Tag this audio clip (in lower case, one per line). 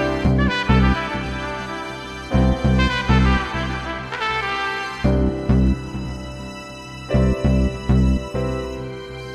music
background music